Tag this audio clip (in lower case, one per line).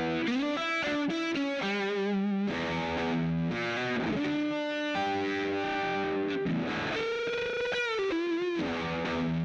music